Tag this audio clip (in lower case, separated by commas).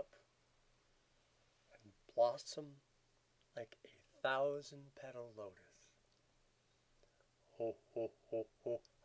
speech, chortle